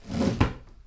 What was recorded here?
wooden drawer closing